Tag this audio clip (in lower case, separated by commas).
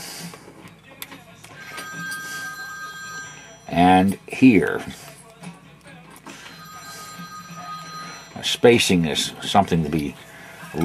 alarm clock, music, speech